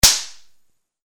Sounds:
gunshot, explosion

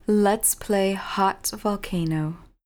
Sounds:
human voice, speech, woman speaking

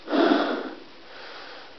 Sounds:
breathing, respiratory sounds

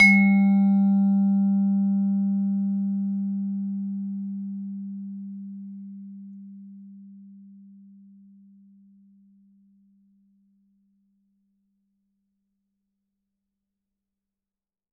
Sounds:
musical instrument, music, percussion, mallet percussion

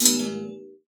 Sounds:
thud

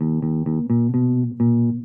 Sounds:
plucked string instrument, music, guitar, musical instrument, bass guitar

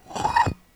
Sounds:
glass

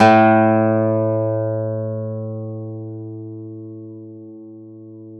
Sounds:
acoustic guitar, plucked string instrument, music, guitar, musical instrument

